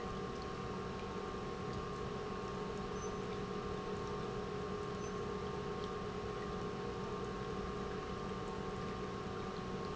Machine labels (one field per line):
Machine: pump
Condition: normal